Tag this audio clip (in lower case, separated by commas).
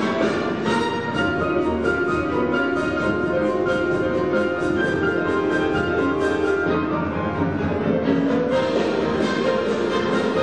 orchestra